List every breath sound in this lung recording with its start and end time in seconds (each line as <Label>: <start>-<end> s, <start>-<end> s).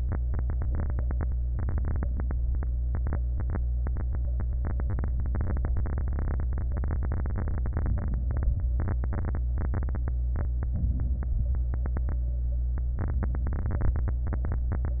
Inhalation: 10.74-11.32 s
Exhalation: 11.31-11.71 s